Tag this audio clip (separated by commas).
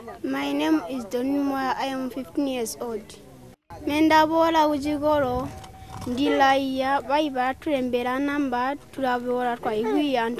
Speech